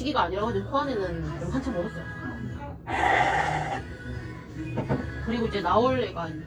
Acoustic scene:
cafe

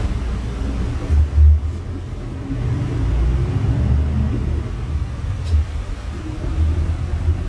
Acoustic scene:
bus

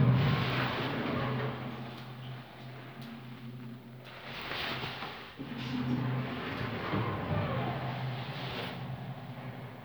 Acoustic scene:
elevator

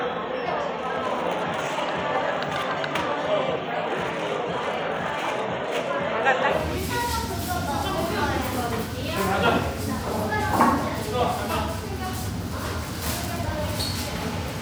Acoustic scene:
cafe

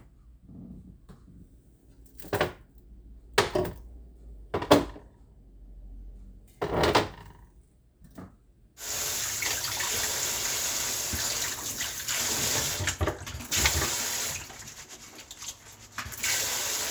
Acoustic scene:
kitchen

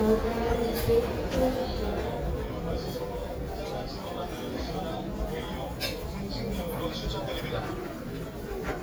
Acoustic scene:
crowded indoor space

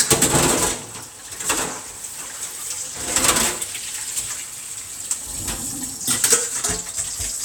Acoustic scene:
kitchen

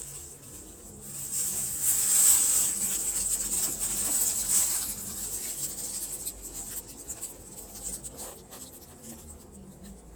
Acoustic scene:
elevator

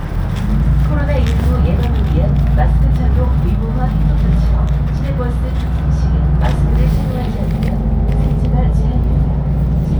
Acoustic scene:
bus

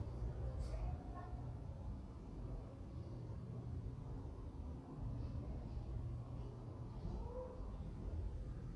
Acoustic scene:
residential area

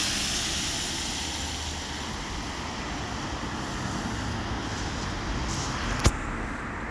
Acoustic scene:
street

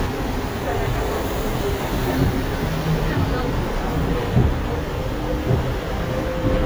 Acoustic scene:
bus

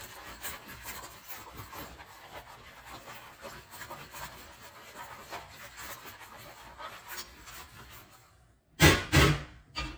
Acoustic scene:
kitchen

